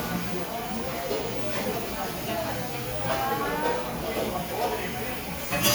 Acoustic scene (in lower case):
cafe